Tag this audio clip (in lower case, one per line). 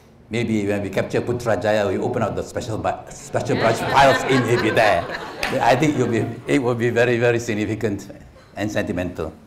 speech
laughter